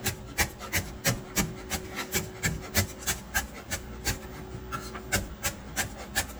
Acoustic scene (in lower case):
kitchen